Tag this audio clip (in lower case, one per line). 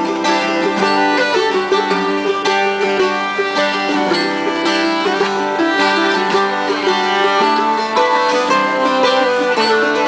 music
guitar
country
acoustic guitar
musical instrument
bowed string instrument
plucked string instrument